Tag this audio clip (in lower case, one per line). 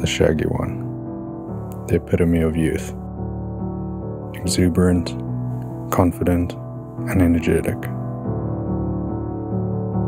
speech
music